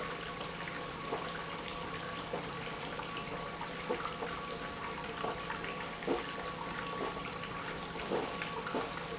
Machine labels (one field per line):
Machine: pump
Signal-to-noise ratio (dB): 0 dB